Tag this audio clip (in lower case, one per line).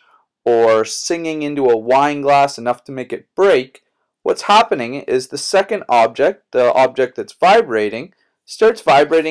speech